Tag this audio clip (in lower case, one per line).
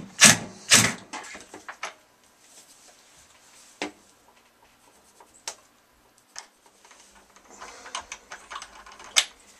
inside a small room